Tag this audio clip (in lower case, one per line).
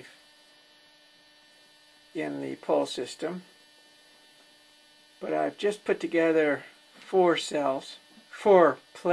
speech